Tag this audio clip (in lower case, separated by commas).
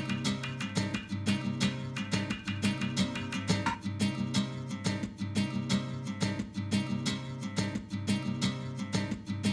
music